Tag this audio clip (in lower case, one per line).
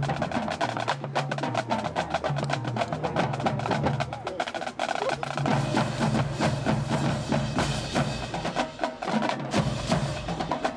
wood block
percussion
music